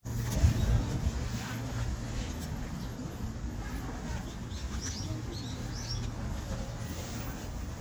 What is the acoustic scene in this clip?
residential area